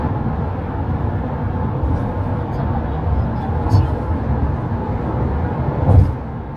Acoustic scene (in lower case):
car